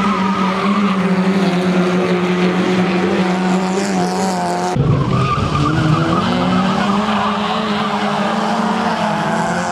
Race cars speeding by and then some skidding